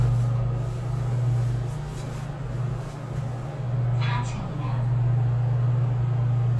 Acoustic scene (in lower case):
elevator